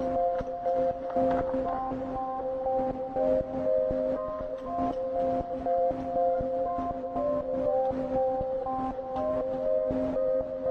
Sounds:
Music

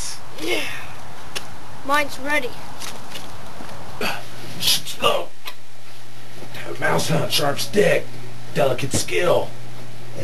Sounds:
Speech

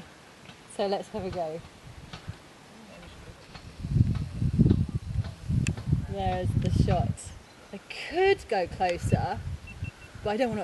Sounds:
Speech

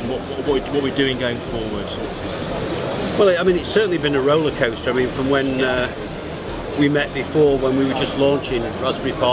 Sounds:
Electronica, Music, Speech

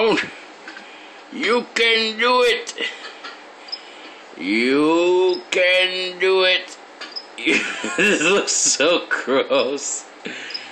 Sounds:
Speech, Animal

